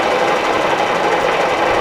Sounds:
Mechanisms

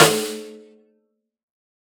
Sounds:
Musical instrument, Drum, Music, Percussion, Snare drum

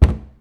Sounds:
Cupboard open or close, home sounds

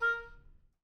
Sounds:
Wind instrument, Musical instrument, Music

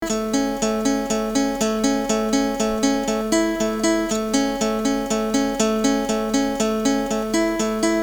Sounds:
Music, Guitar, Musical instrument, Plucked string instrument, Acoustic guitar

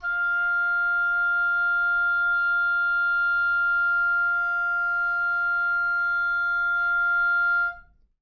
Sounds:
Wind instrument, Music, Musical instrument

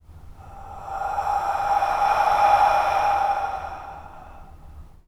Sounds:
Breathing, Respiratory sounds

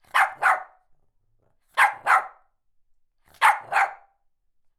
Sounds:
pets, Animal, Bark, Dog

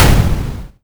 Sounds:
gunfire, Explosion

